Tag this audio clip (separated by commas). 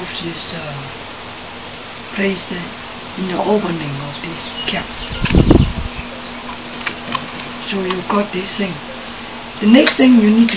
Speech